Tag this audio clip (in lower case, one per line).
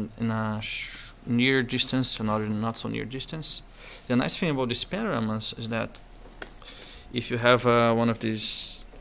speech